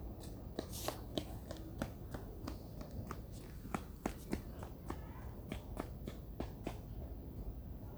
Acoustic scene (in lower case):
residential area